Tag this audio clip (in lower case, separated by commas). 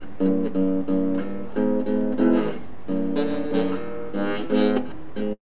music, plucked string instrument, guitar, musical instrument